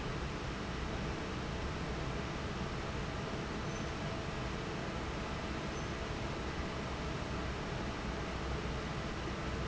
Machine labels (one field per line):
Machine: fan